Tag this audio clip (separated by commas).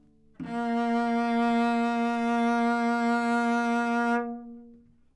Bowed string instrument, Music, Musical instrument